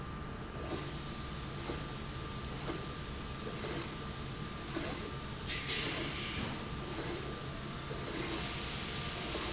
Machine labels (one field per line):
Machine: slide rail